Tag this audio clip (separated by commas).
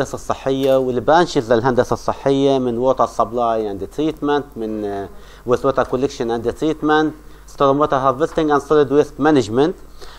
Speech